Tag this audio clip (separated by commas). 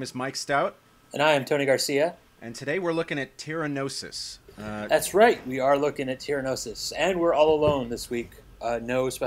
Speech